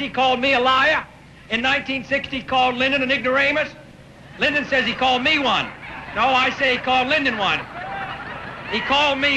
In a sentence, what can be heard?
A man making a speech and others laughing in between the speech